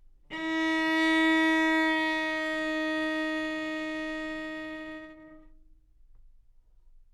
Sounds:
Music, Bowed string instrument, Musical instrument

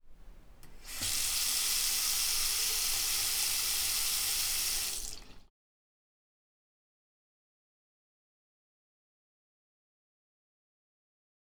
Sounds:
home sounds, Sink (filling or washing)

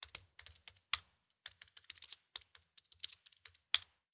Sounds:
Computer keyboard, Domestic sounds, Typing

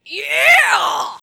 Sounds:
Shout, Yell, Human voice

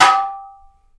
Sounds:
Domestic sounds, dishes, pots and pans

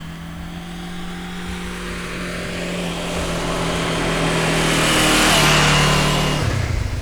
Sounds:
Motor vehicle (road), Engine, Vehicle, Motorcycle

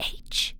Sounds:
Human voice, Whispering

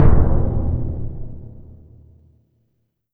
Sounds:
Music, Drum, Percussion, Musical instrument

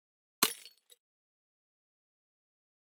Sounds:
Shatter, Glass

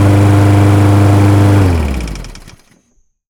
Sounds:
Engine

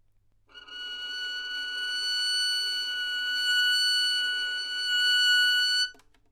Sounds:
Musical instrument, Bowed string instrument, Music

